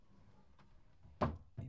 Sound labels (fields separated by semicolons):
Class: drawer; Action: closing; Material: wooden